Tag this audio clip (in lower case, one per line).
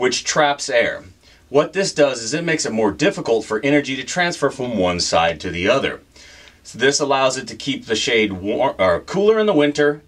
speech